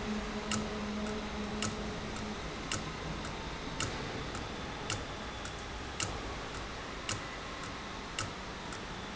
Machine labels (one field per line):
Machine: valve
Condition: abnormal